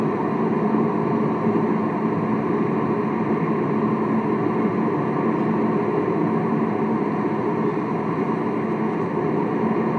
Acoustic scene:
car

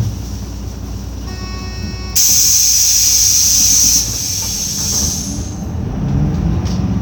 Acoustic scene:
bus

